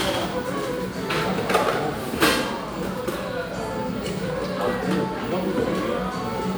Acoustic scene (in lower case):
cafe